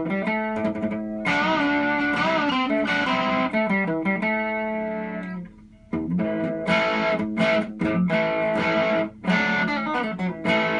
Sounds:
playing electric guitar, guitar, strum, musical instrument, electric guitar, music, plucked string instrument

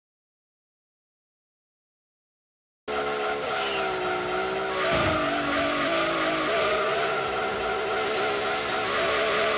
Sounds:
motor vehicle (road), vehicle, car

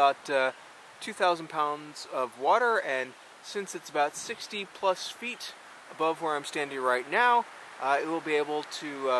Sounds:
speech

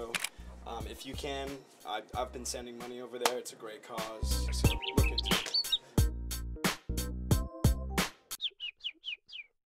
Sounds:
music, tweet, speech, bird

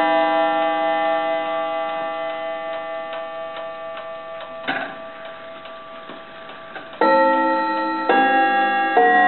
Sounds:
tick-tock

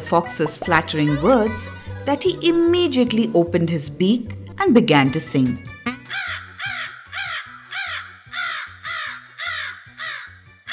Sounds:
crow cawing

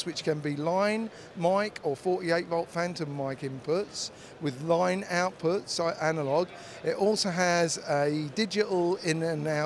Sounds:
speech

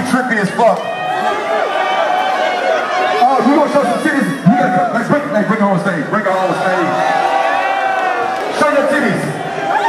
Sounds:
cheering, crowd

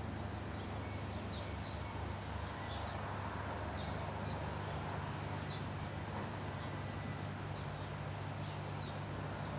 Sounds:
magpie calling

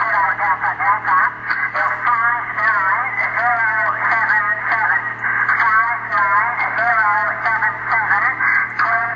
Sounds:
radio, speech

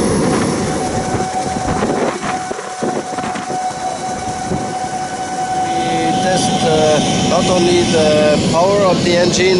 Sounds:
vehicle, speech, propeller

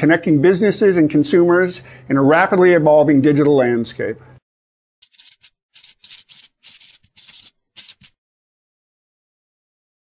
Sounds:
speech, music

